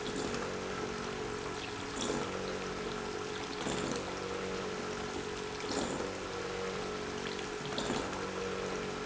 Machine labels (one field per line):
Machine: pump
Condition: abnormal